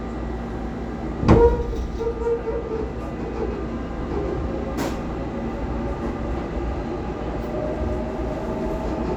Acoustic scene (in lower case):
subway train